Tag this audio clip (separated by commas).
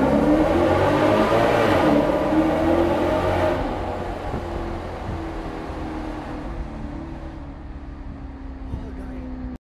Speech